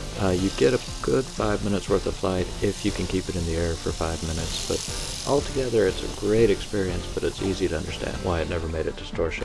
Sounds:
bird wings flapping

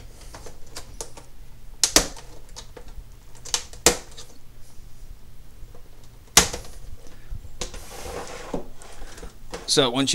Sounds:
inside a small room
speech

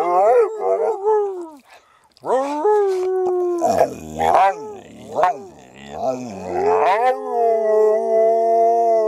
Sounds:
dog howling

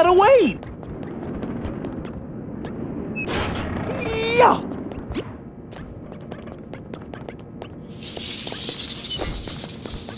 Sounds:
speech

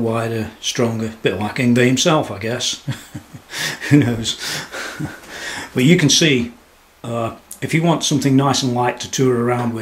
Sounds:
speech

